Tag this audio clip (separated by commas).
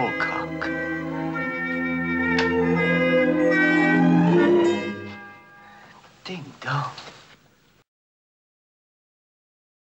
Speech, Music